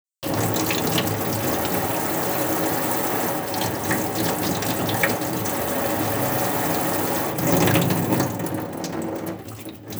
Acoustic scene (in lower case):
restroom